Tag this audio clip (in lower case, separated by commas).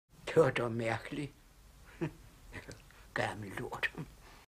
speech